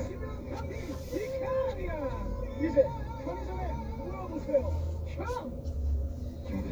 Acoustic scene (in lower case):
car